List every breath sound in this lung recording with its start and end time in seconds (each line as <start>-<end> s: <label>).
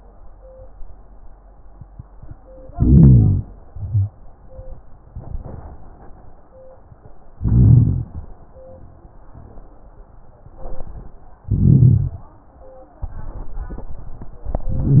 2.75-3.46 s: inhalation
3.71-4.13 s: exhalation
5.10-5.78 s: exhalation
7.39-8.08 s: inhalation
10.46-11.16 s: exhalation
11.49-12.25 s: inhalation
13.03-14.46 s: exhalation
14.68-15.00 s: inhalation